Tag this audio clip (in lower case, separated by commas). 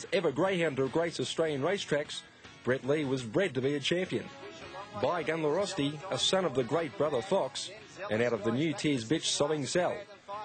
music, speech